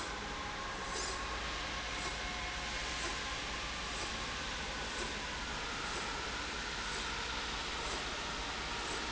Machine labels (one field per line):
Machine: slide rail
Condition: normal